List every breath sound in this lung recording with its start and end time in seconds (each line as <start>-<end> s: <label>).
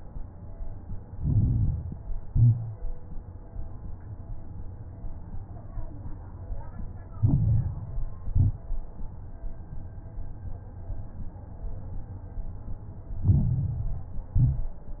1.00-1.99 s: inhalation
1.00-1.99 s: crackles
2.03-3.02 s: exhalation
2.03-3.02 s: crackles
7.14-8.13 s: inhalation
7.14-8.13 s: crackles
8.15-8.72 s: exhalation
8.15-8.72 s: crackles
13.21-14.19 s: inhalation
13.21-14.19 s: crackles
14.37-14.93 s: exhalation
14.37-14.93 s: crackles